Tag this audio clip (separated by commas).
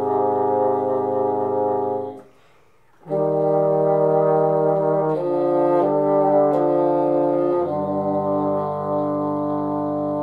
playing bassoon